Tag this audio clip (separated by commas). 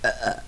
eructation